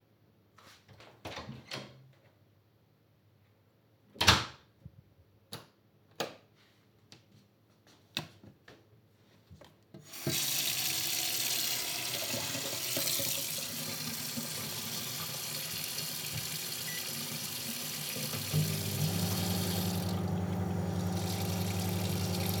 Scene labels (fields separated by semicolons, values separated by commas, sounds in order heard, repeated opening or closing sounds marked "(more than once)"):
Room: kitchen, hallway; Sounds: door (more than once), light switch, running water, microwave